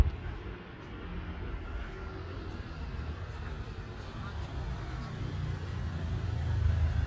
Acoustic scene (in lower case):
street